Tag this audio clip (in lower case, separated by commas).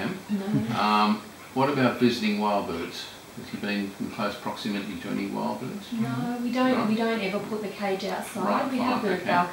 speech